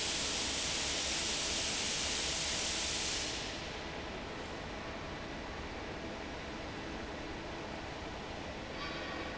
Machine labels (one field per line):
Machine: fan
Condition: normal